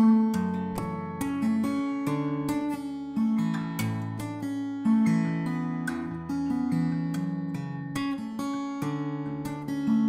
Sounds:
Guitar, Music, Plucked string instrument, Strum, Acoustic guitar, Musical instrument

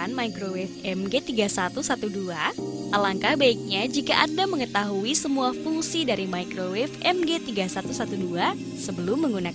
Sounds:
Music, Speech

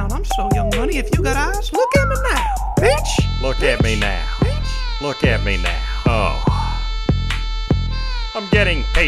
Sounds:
rapping

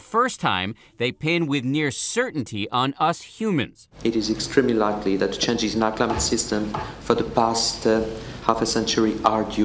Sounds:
Speech

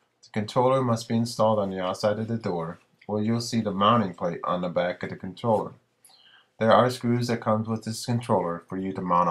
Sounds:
Speech

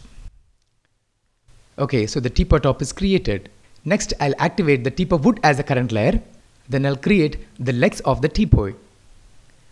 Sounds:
Speech

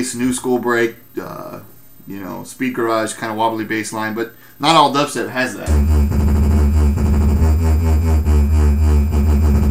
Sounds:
Electronic music, Music, Dubstep, Speech

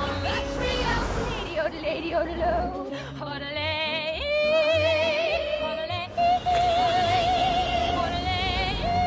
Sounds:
Music

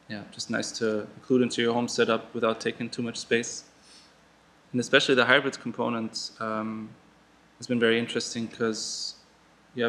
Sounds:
Speech

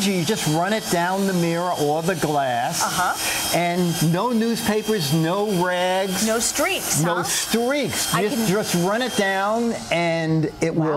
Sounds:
Speech, inside a small room

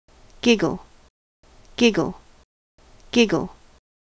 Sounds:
Speech

